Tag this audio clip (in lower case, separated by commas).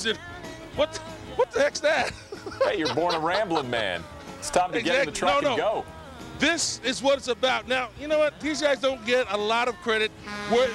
speech, music